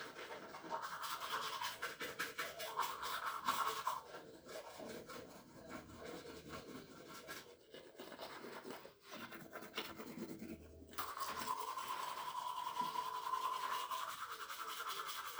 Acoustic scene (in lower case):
restroom